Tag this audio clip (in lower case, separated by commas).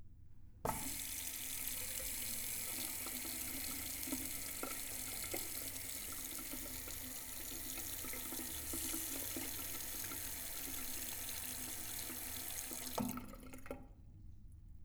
faucet, liquid, trickle, pour, bathtub (filling or washing), domestic sounds